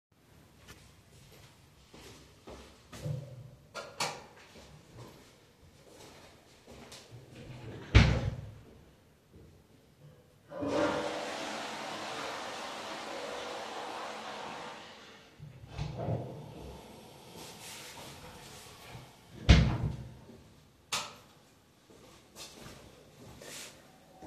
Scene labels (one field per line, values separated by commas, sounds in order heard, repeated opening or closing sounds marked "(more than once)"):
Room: hallway, bathroom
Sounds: footsteps, light switch, door (more than once), toilet flushing